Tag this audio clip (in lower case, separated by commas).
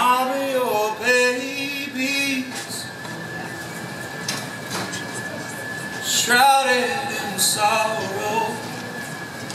music